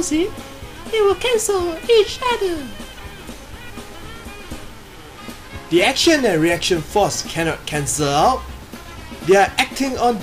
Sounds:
Music, Speech

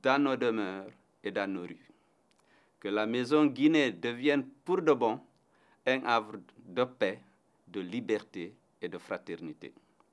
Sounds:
Speech

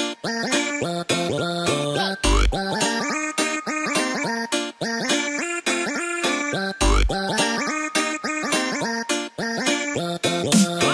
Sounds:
Music

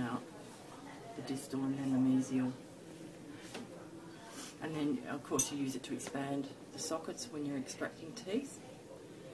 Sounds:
Speech, inside a small room

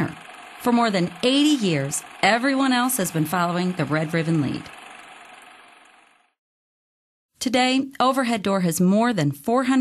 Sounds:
Vehicle, Speech

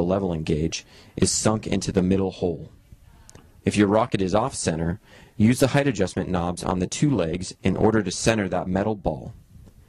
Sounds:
Speech

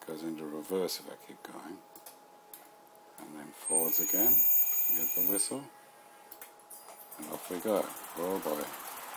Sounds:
Train, Rail transport, Speech

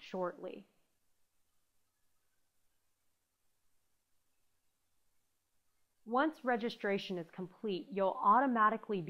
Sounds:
Speech, Silence

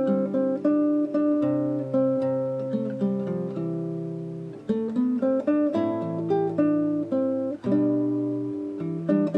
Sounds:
Acoustic guitar, Strum, Plucked string instrument, Guitar, Musical instrument, Music

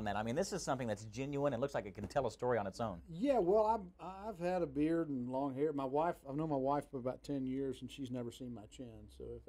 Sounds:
Speech

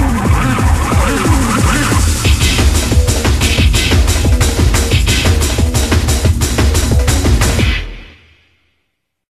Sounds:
Soundtrack music, Music

